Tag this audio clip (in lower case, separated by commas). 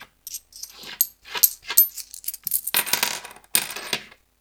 home sounds, coin (dropping)